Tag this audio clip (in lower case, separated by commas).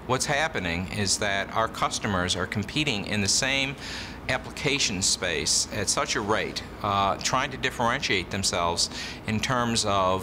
speech